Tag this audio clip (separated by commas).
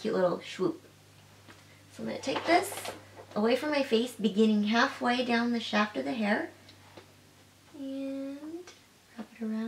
inside a small room, Speech